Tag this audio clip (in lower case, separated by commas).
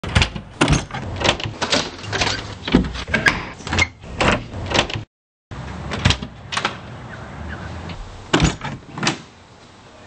door